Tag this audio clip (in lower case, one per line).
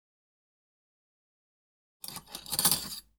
domestic sounds
silverware